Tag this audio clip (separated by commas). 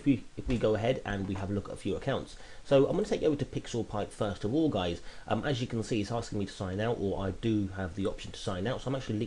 Speech